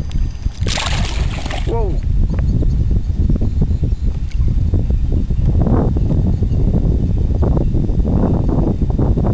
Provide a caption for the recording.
Water splashes, the wind is blowing, and an adult male speaks